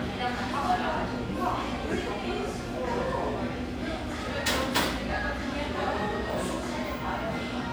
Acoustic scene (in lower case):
cafe